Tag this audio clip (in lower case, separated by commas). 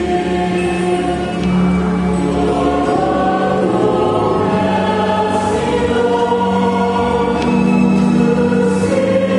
music, choir